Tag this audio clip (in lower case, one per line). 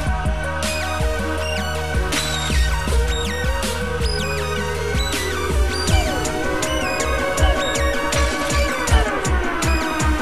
dubstep
music